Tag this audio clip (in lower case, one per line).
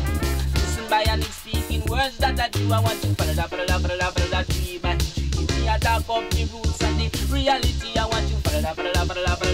music